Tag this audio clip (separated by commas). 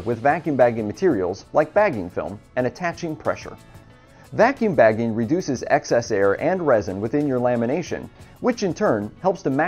Music, Speech